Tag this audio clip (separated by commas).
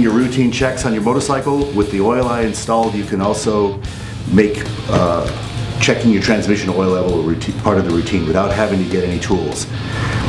Music, Speech